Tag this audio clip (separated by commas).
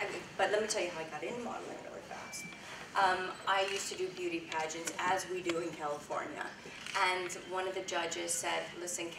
Speech